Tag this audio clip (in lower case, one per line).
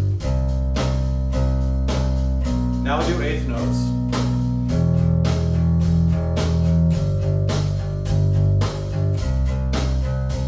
playing bass guitar